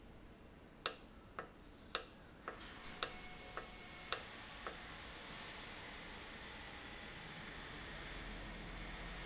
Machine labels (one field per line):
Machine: valve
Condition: normal